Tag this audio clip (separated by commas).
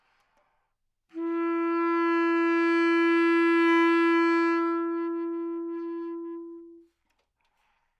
Music, Musical instrument, woodwind instrument